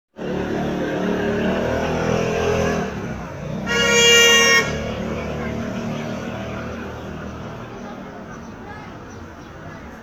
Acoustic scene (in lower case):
street